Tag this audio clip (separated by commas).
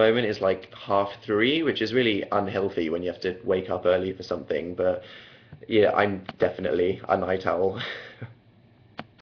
Speech